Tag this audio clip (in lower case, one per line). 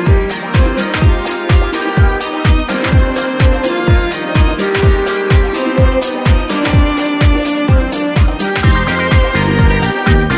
music